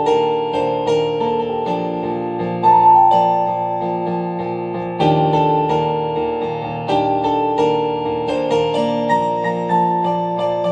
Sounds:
Musical instrument, inside a small room, Piano, Music, Keyboard (musical)

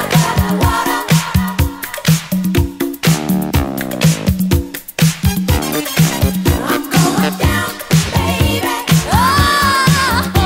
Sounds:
Disco, Funk, Music

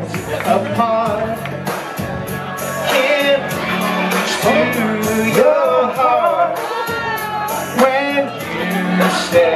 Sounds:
Music, Male singing

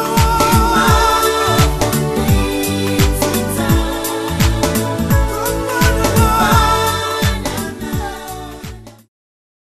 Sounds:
Jazz, Music, Pop music, Gospel music

